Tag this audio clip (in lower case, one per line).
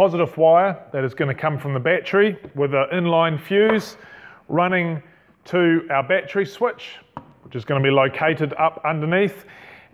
speech